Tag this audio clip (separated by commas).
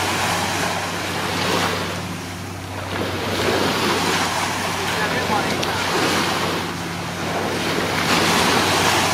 Speech